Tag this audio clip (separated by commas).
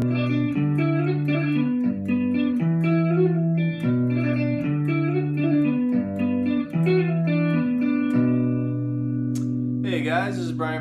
tapping guitar